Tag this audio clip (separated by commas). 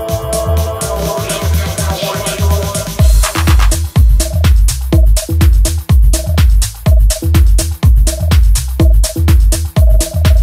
Music